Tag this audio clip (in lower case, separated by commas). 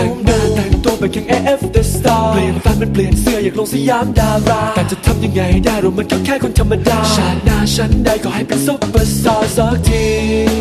music